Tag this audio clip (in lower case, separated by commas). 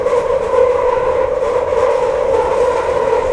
metro, rail transport, vehicle